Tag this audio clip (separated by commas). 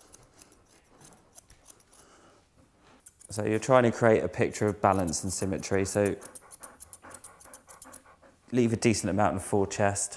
Speech, Animal, Dog, Domestic animals